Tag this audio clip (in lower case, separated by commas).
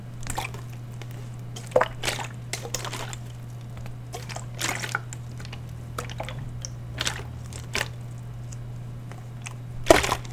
liquid